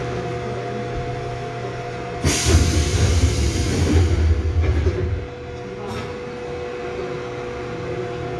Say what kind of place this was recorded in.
subway train